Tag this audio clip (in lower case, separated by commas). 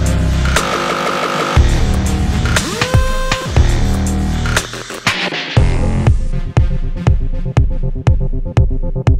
music